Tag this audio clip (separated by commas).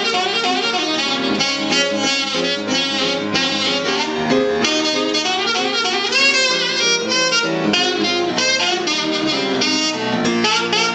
Music, Piano, Keyboard (musical), Saxophone, Musical instrument